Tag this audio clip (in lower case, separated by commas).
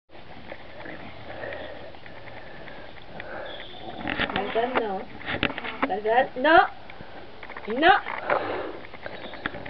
dog, animal, speech